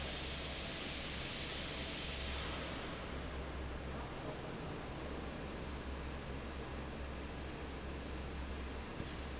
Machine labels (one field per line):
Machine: fan